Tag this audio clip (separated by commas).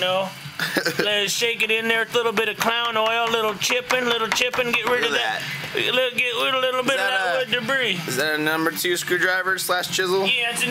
Speech